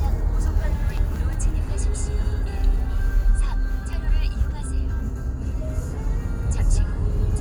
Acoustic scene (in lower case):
car